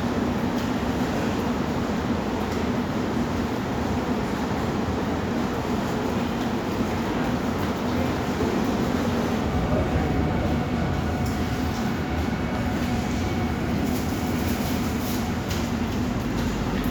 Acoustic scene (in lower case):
subway station